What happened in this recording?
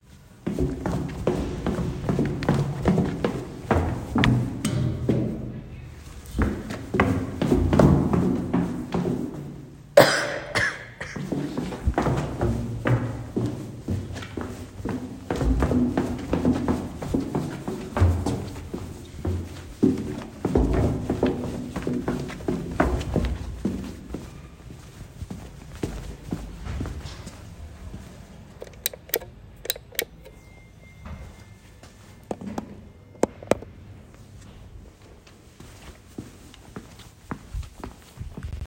I walked in the hallway and turned on the light switch. Footsteps are clearly audible. A cough and pressing the elevator button can also be heard as non-target sounds.